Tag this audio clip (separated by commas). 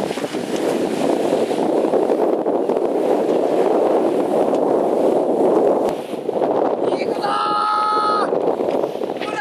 Speech